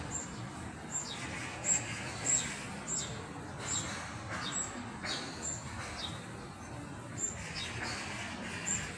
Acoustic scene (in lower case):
park